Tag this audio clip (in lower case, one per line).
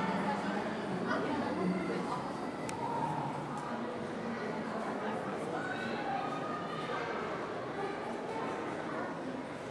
speech